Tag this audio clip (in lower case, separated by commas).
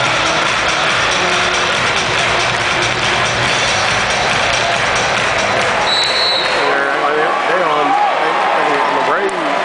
speech, music